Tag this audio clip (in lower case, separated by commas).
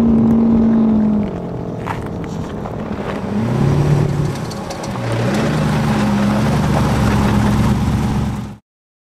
car, vehicle